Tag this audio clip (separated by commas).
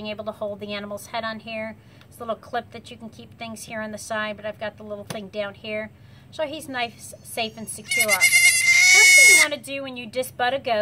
Bleat, Speech